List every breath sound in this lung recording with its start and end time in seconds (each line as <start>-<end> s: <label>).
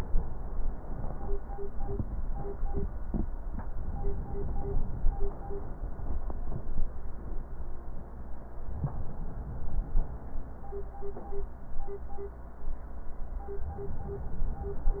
3.80-5.15 s: inhalation
8.81-10.17 s: inhalation